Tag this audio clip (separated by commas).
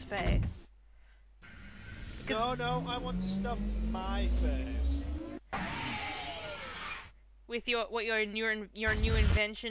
Speech